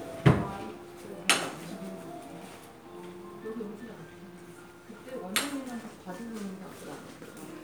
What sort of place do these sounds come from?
crowded indoor space